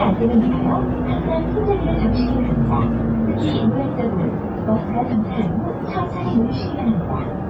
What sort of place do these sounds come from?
bus